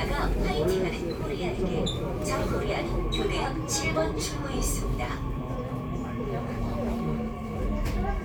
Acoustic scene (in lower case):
subway train